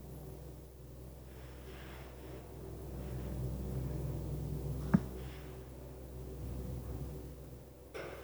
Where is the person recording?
in an elevator